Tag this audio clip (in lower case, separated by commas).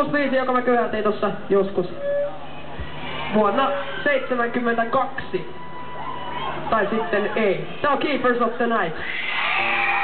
speech, music